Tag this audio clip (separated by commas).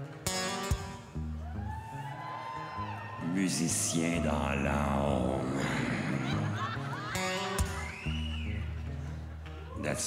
Music